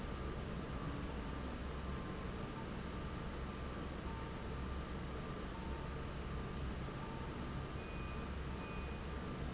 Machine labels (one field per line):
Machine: fan